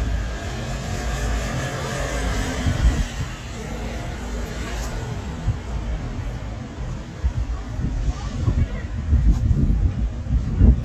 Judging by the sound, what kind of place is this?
street